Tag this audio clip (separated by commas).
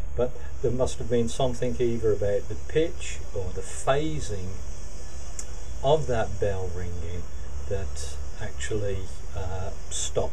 man speaking, Speech